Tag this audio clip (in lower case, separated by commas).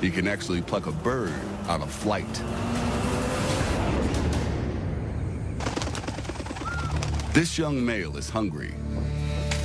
music, speech